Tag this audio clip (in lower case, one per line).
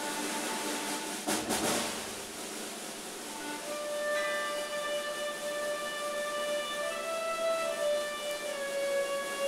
music